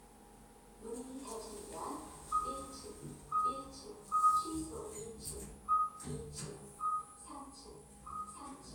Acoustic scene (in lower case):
elevator